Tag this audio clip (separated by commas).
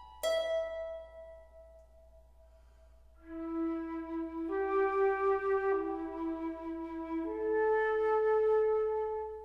Music, New-age music, Tender music, Flute